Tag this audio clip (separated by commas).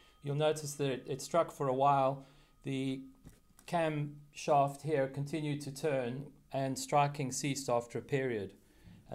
Speech